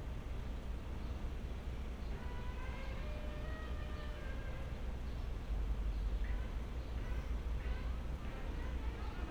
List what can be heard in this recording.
music from an unclear source